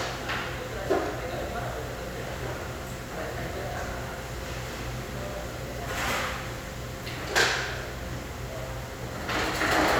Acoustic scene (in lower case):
restaurant